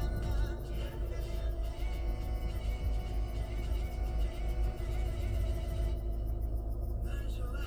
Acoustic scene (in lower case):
car